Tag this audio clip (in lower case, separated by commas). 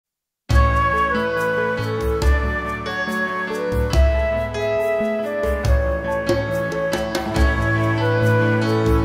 music of asia, tender music, music